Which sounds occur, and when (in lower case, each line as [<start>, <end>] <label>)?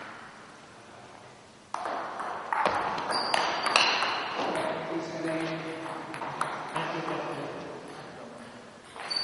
[0.00, 9.23] mechanisms
[1.71, 1.91] tap
[2.13, 2.30] bouncing
[2.46, 2.63] tap
[2.64, 2.85] thump
[2.92, 3.14] tap
[3.14, 3.63] squeal
[3.30, 3.47] bouncing
[3.60, 3.74] tap
[3.76, 3.96] bouncing
[4.38, 4.68] tap
[4.38, 6.14] male speech
[5.24, 5.68] surface contact
[5.77, 5.91] bouncing
[6.14, 6.23] bouncing
[6.39, 6.57] bouncing
[6.72, 7.04] bouncing
[6.75, 8.58] male speech
[8.93, 9.19] bouncing